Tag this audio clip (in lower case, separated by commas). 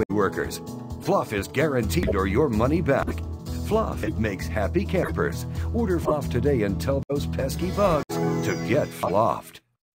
speech, music